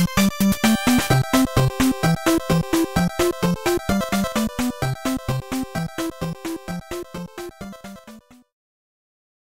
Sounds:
Video game music, Music

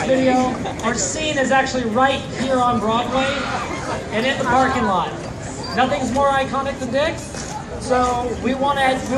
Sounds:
Speech

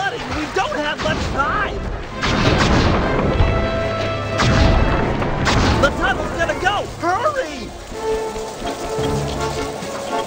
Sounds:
crash

